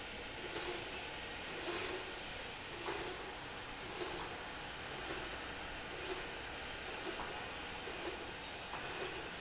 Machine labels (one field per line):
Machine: slide rail